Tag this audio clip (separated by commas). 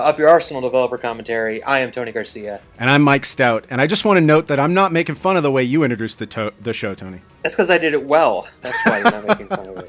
Speech, Music